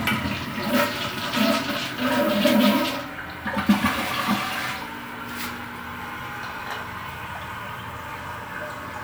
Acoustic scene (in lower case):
restroom